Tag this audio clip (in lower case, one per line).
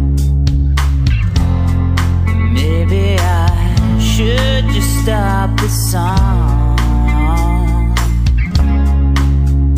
music
lullaby